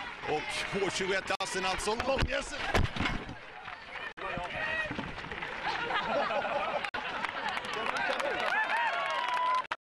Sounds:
speech

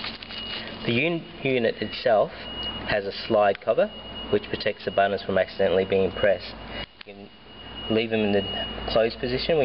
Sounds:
speech

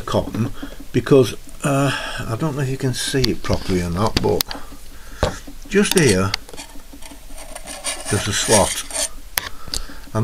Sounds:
speech

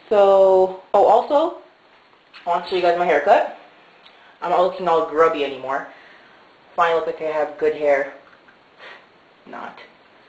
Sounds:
speech

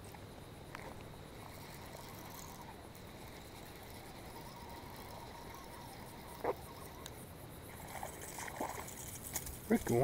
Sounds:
speech
gurgling

